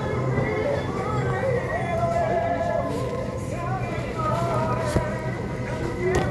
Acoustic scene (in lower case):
crowded indoor space